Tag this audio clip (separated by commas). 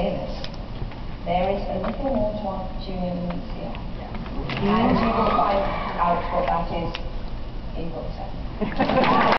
Speech